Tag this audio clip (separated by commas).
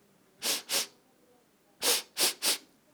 Respiratory sounds